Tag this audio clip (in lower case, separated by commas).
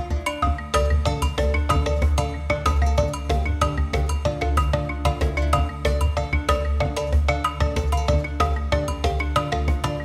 music